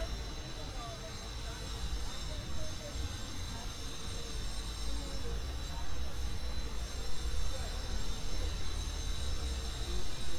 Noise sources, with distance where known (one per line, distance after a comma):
person or small group talking, near